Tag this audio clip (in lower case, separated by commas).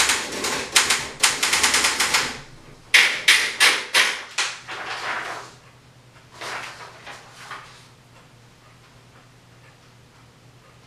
typing on typewriter